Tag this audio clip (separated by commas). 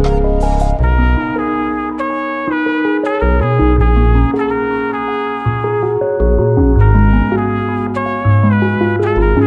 Brass instrument, Trumpet